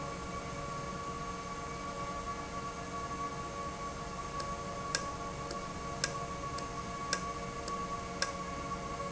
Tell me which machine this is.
valve